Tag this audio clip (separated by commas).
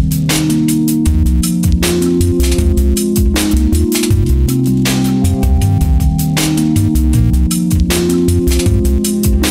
inside a small room, Music